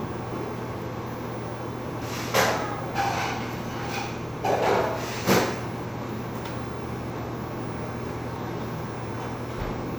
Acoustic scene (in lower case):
cafe